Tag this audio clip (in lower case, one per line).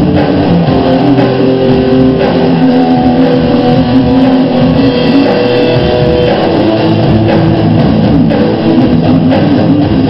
musical instrument
music
strum
guitar
plucked string instrument